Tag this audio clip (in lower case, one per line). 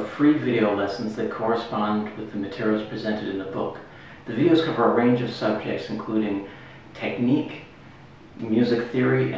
speech